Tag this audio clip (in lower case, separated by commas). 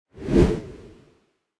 swoosh